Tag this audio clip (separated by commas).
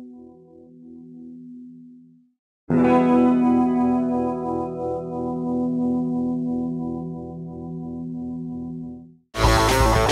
Music, Plucked string instrument, Musical instrument, Guitar, Strum